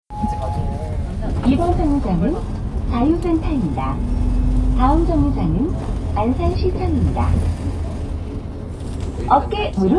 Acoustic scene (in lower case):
bus